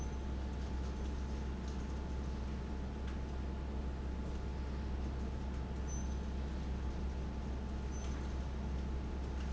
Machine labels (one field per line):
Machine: fan